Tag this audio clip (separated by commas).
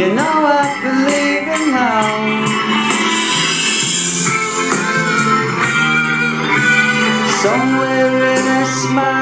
Music, Male singing